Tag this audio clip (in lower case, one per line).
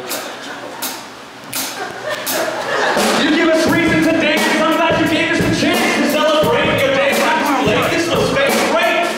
music